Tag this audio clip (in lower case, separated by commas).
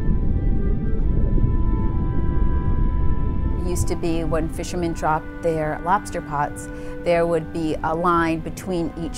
music, speech